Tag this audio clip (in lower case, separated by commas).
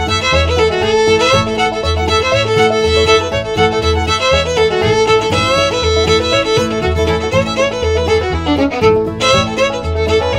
music, musical instrument, fiddle